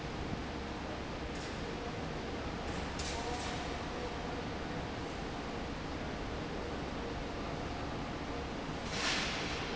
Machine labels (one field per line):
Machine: fan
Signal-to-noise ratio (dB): -6 dB